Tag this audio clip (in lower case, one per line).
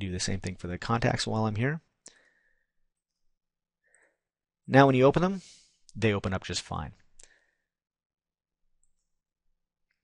speech
inside a small room